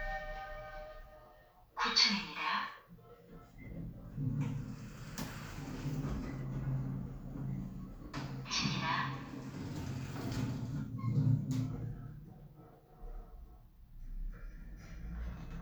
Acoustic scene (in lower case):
elevator